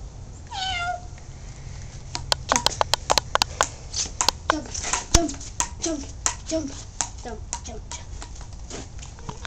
A cat meows followed by some loud clicking and a woman talking